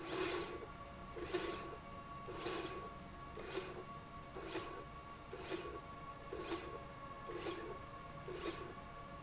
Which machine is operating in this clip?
slide rail